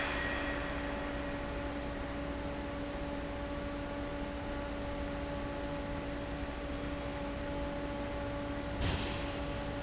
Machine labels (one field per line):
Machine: fan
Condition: abnormal